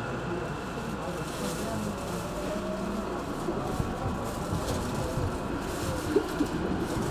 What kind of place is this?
subway train